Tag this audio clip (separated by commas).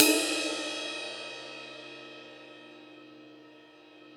Percussion, Musical instrument, Crash cymbal, Cymbal, Music